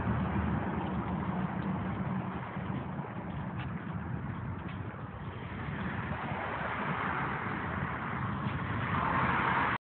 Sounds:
car
vehicle

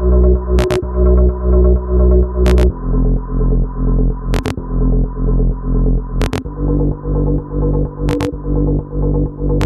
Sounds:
hum

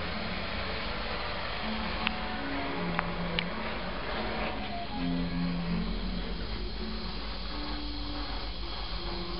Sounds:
music

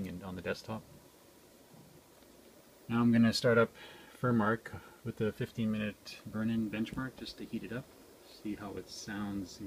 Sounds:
speech

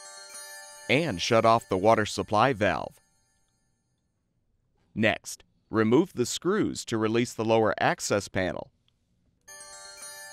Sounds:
speech

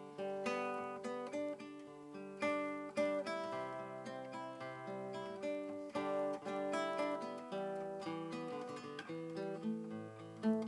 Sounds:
guitar
plucked string instrument
acoustic guitar
music
musical instrument

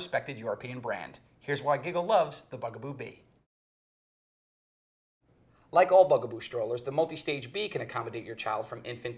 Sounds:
speech

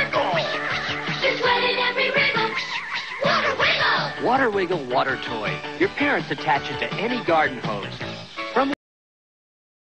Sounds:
music
speech

